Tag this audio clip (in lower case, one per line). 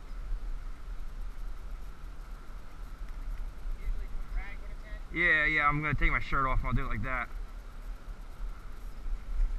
speech